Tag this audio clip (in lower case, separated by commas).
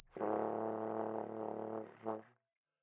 brass instrument, musical instrument, music